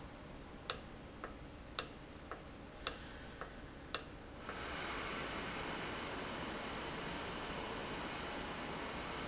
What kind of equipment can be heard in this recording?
valve